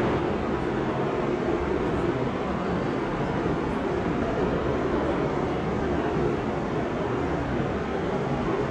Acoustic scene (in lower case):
subway train